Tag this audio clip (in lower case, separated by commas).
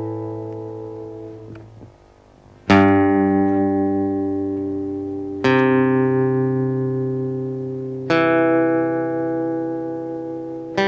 plucked string instrument, musical instrument, music, strum, guitar